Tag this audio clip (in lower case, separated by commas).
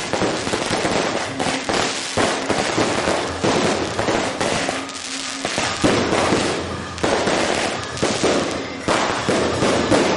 fireworks